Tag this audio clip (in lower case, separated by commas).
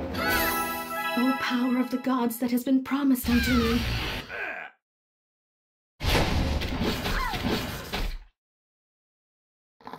speech, music